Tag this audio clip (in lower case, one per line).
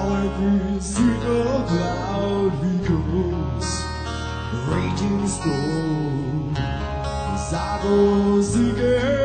music